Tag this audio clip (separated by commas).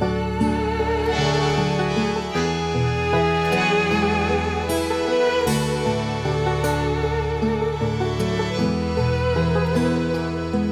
Music